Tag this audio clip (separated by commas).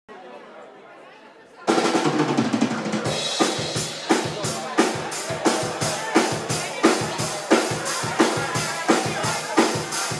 Drum kit, Drum roll, Snare drum, Percussion, Rimshot, Drum, Bass drum